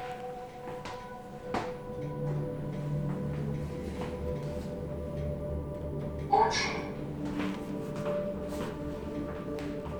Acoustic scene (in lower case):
elevator